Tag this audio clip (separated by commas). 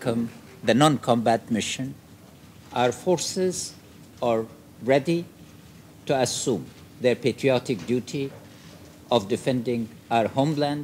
man speaking, Speech